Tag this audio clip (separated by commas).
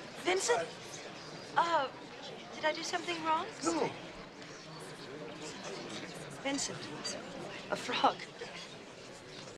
Speech